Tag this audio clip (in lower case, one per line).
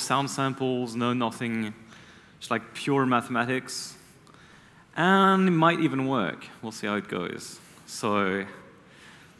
speech